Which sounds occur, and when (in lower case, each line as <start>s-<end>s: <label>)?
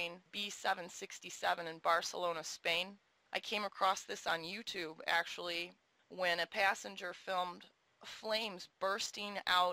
0.0s-2.9s: woman speaking
0.0s-9.7s: background noise
3.3s-5.7s: woman speaking
6.0s-6.0s: tick
6.1s-7.7s: woman speaking
7.6s-7.6s: tick
8.0s-8.6s: woman speaking
8.8s-9.7s: woman speaking